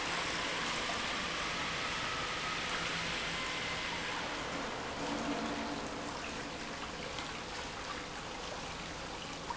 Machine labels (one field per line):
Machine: pump